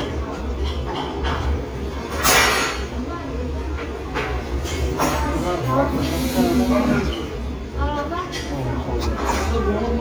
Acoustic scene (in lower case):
restaurant